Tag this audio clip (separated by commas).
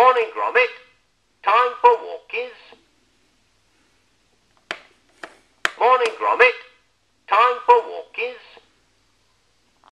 Tick-tock, Speech